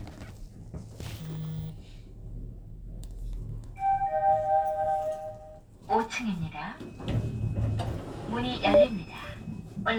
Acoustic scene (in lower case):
elevator